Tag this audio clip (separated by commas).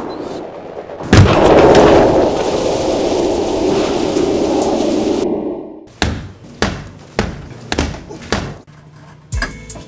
Knock, Tap